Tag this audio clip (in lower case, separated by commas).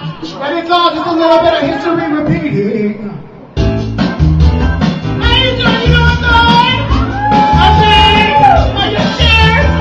speech, music